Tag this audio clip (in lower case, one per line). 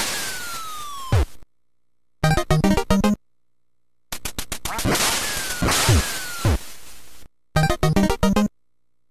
music
quack